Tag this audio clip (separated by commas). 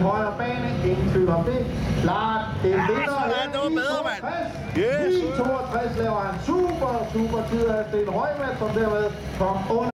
Speech